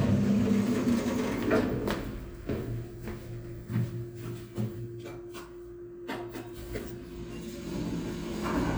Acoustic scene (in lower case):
elevator